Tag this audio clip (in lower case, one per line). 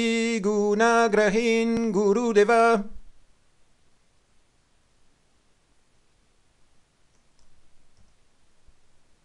mantra